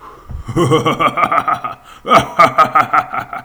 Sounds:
human voice, laughter

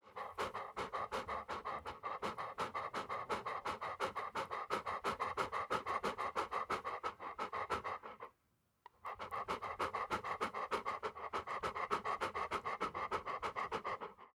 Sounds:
pets, animal, dog

